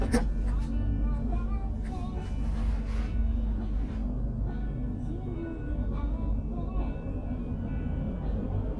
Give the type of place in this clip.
car